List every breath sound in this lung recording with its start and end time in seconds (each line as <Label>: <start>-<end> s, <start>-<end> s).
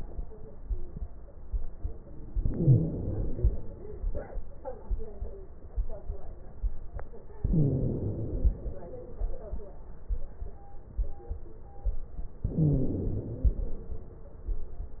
Inhalation: 2.37-3.87 s, 7.39-8.72 s, 12.43-13.74 s
Wheeze: 2.37-3.10 s, 7.39-8.09 s, 12.43-13.15 s